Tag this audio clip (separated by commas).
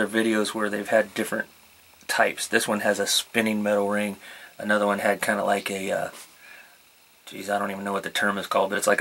Speech